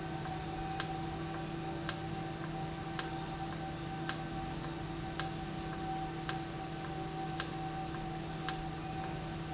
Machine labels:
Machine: valve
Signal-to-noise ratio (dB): -6 dB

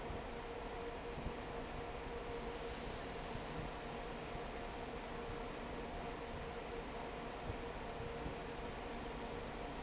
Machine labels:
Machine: fan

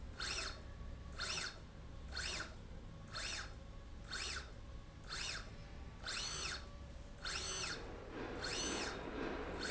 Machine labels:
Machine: slide rail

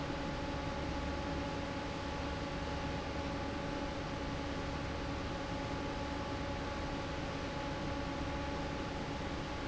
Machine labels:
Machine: fan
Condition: normal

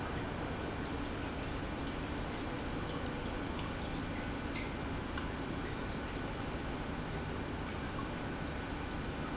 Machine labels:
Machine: pump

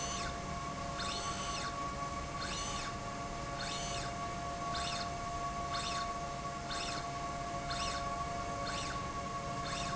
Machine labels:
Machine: slide rail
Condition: normal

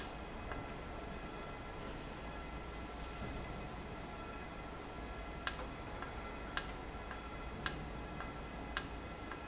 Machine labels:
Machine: valve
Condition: normal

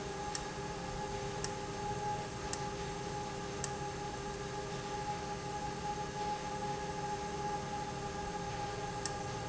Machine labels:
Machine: valve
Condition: abnormal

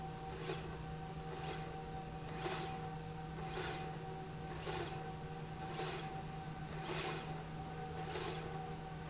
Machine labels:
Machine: slide rail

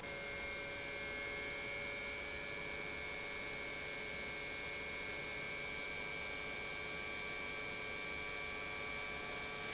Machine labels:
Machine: pump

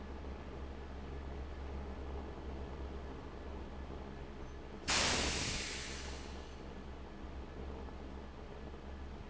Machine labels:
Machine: fan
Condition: abnormal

